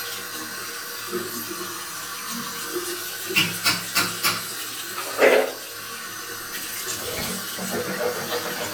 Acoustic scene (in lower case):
restroom